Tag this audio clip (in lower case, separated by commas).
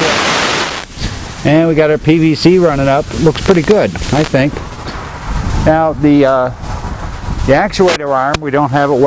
wind noise (microphone), wind